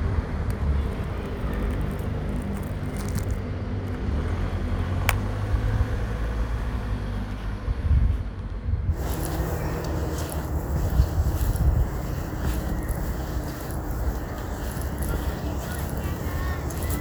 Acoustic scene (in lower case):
residential area